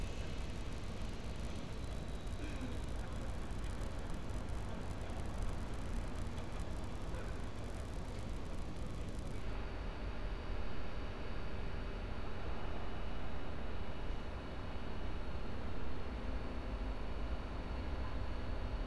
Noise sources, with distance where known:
background noise

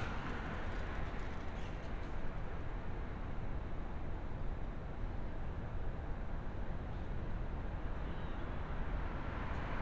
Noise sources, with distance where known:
engine of unclear size, near

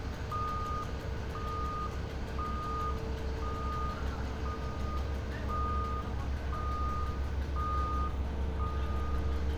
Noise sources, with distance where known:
reverse beeper, near

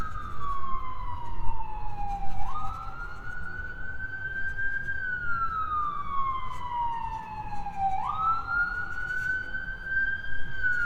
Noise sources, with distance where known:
siren, near

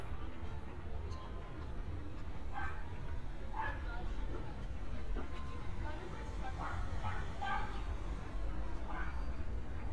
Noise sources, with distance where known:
dog barking or whining, far

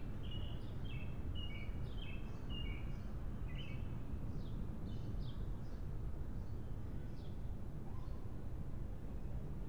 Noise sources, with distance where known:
background noise

